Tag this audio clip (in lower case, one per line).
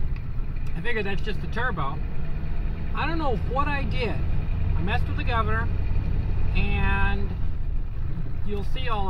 speech